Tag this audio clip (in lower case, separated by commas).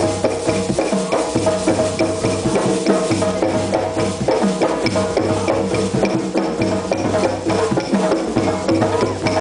music